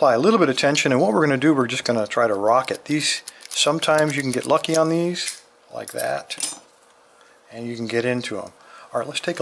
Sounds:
inside a small room, Speech

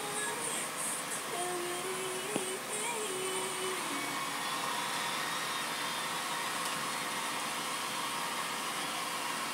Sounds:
Singing

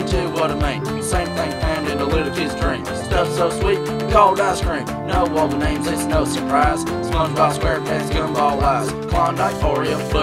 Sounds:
Music

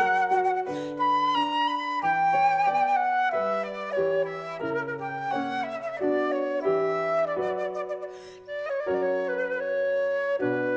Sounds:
Flute, Musical instrument, playing flute, Classical music, woodwind instrument, Music

